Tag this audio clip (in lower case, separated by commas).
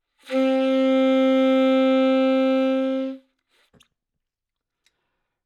musical instrument, music, wind instrument